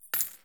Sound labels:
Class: object falling